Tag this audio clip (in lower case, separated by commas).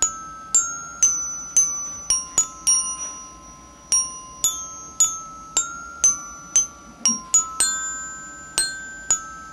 xylophone, glockenspiel, mallet percussion